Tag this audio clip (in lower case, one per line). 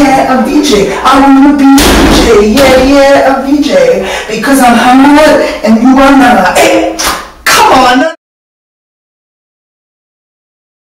speech